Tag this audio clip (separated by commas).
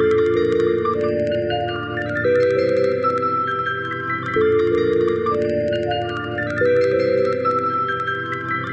Music, Piano, Musical instrument, Keyboard (musical)